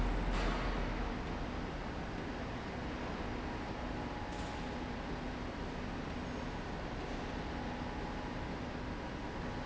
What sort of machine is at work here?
slide rail